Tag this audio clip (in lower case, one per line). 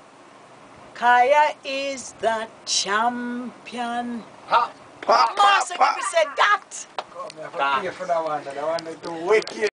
speech